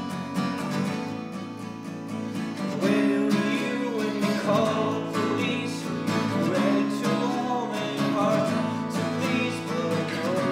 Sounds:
Music

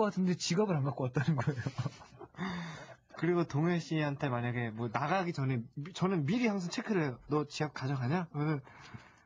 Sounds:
Speech

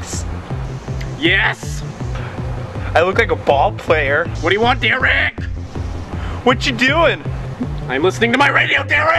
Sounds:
Music, Speech

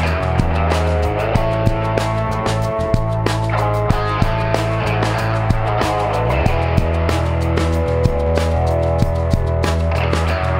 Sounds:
Music, Country

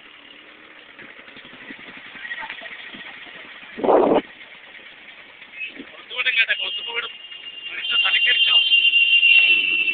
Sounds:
Speech, Rattle

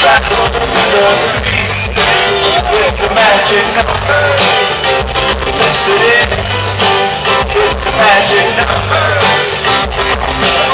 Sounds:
Singing

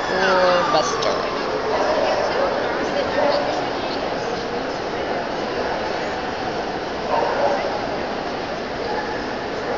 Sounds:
Dog, Speech, pets, Bow-wow, Yip, Animal

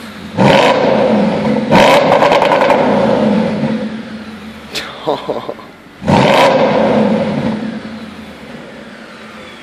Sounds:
Flap

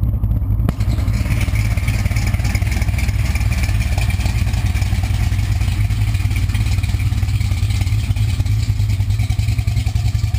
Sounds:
Car, Vehicle

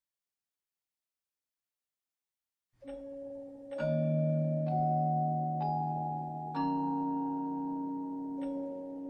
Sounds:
xylophone, Mallet percussion

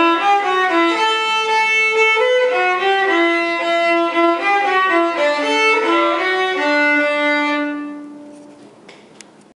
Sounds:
fiddle, Music, Musical instrument

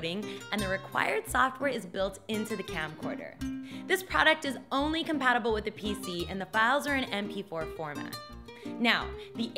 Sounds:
Speech, Music

